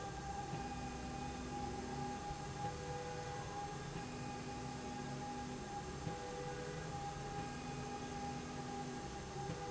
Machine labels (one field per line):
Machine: slide rail